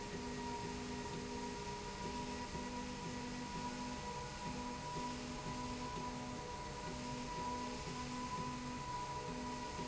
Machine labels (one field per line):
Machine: slide rail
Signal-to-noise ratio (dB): 0 dB